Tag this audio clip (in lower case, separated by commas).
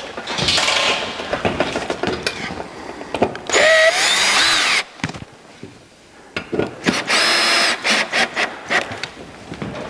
inside a large room or hall, tools